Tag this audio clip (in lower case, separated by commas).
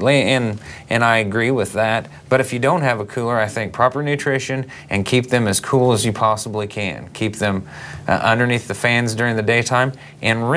speech